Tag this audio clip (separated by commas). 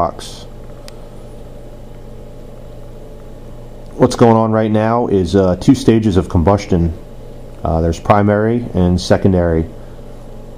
Speech